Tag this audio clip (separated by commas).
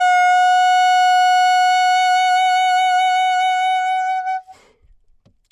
Musical instrument, Wind instrument, Music